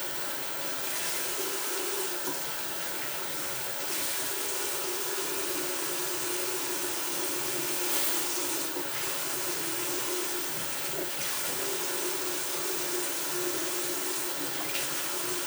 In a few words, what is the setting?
restroom